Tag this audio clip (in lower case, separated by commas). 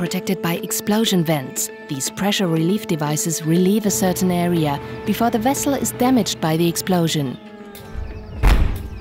music, speech, explosion, burst